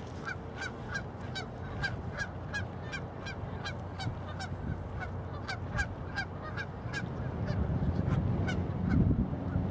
Ducks quacking wind blowing